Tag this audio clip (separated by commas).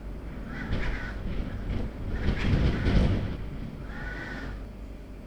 Wind